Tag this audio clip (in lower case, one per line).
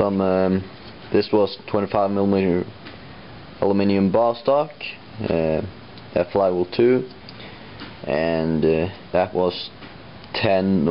speech